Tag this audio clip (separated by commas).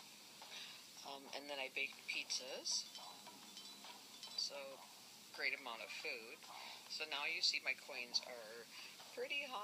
Speech